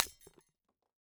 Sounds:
Shatter, Glass

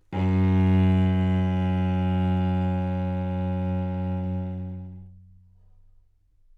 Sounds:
Bowed string instrument, Musical instrument, Music

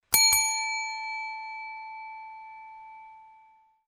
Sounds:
Bell

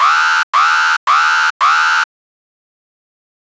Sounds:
Alarm

